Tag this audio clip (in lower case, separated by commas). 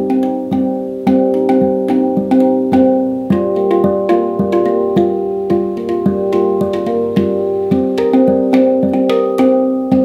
music